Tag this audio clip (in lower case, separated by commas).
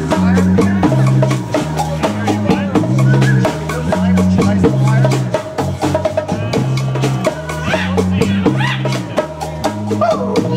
music, speech